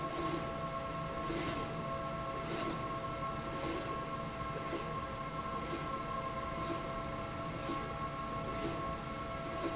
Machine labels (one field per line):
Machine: slide rail